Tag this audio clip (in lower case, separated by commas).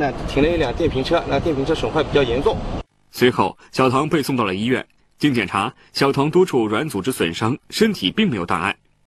speech